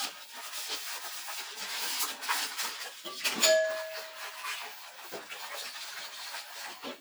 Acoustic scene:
kitchen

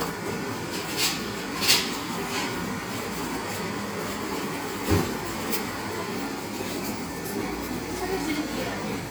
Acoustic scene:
cafe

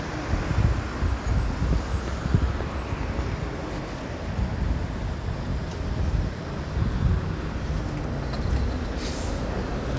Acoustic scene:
residential area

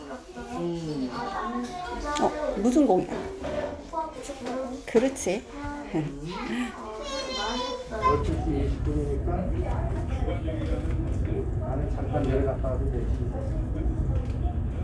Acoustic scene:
crowded indoor space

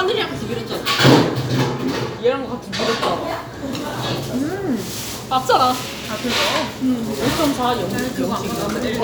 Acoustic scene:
restaurant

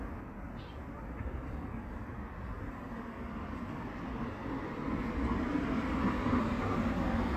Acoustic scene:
residential area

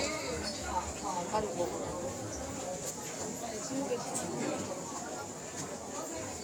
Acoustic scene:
crowded indoor space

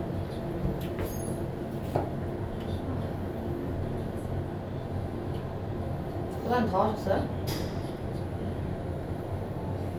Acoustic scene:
elevator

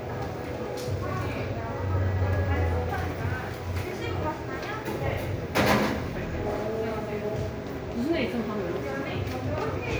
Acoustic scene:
cafe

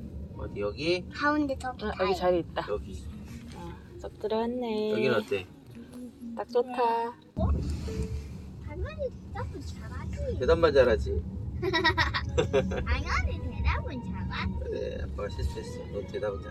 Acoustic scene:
car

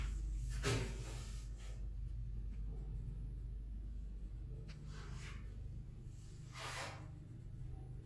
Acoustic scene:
elevator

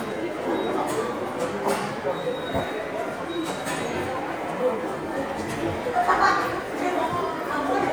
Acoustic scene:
subway station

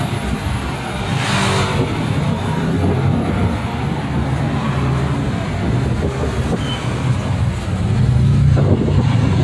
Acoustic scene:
street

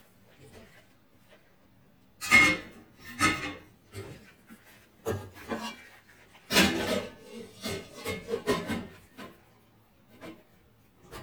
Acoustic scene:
kitchen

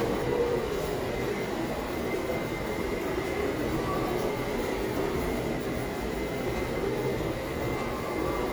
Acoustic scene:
subway station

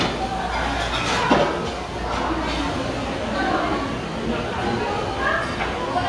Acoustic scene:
restaurant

